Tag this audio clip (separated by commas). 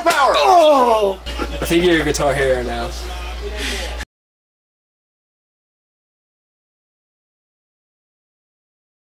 Speech